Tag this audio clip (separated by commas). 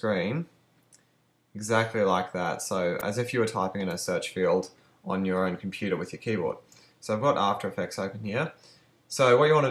Speech